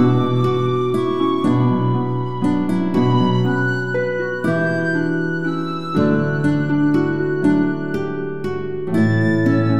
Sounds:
music

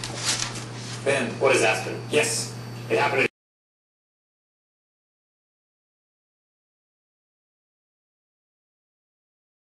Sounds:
speech

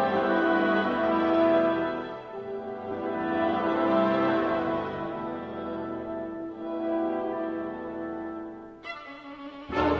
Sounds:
music

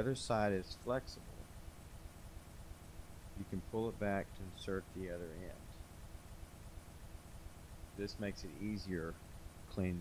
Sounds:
speech

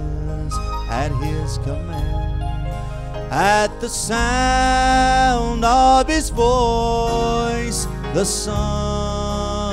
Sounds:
male singing, music

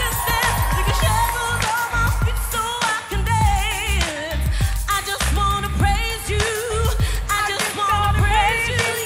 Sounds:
music

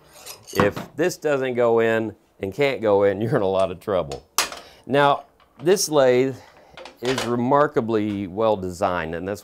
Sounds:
speech, tools

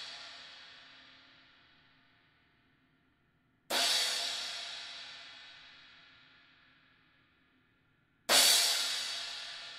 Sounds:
cymbal, music

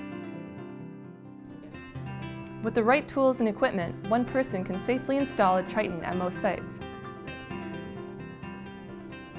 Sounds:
music, speech

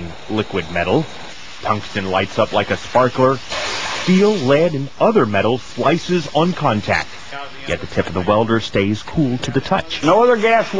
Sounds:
speech

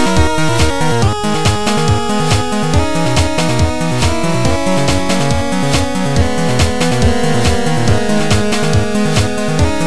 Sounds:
music, soundtrack music

